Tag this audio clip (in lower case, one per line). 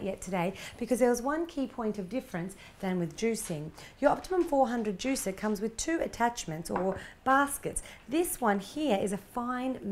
speech